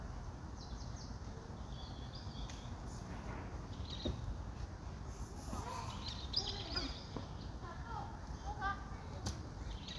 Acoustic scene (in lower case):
park